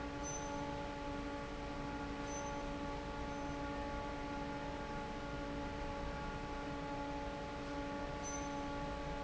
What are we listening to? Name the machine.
fan